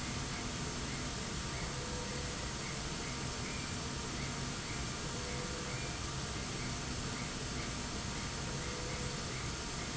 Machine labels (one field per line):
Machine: slide rail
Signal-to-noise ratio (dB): -6 dB